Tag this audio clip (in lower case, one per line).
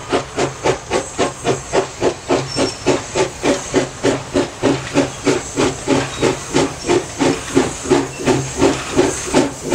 hiss
steam